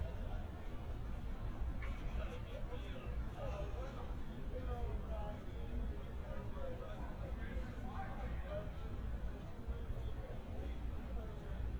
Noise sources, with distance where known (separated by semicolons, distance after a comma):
person or small group talking, far